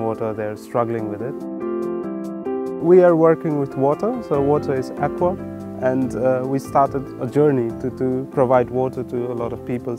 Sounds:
Speech, Music

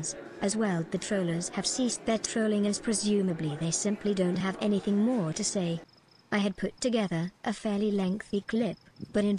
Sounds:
Insect, Cricket

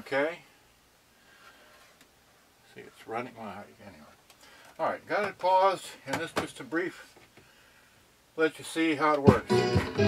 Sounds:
Speech, Music

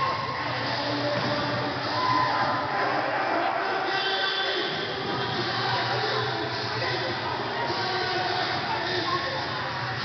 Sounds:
Speech

